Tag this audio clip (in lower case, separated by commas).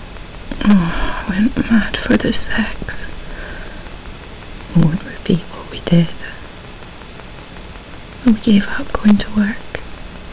speech, inside a small room